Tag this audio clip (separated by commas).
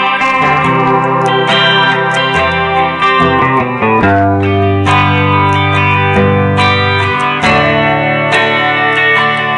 Music, Steel guitar